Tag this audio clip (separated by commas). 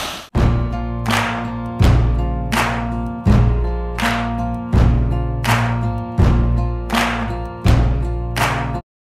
Music